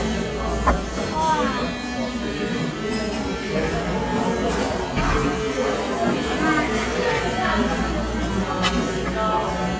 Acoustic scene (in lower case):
cafe